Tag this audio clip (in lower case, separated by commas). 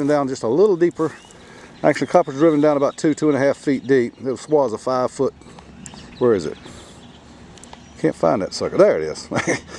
outside, rural or natural, speech